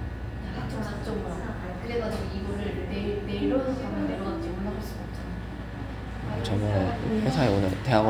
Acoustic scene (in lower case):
cafe